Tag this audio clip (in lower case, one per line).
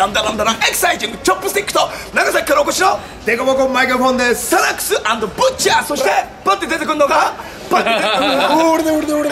speech